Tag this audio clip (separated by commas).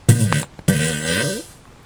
Fart